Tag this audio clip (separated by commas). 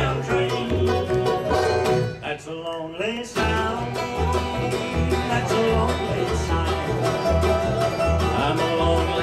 Music, Bluegrass, Country